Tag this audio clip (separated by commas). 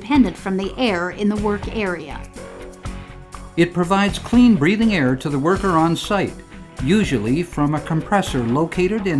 Speech, Music